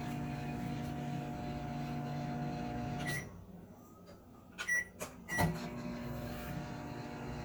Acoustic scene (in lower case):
kitchen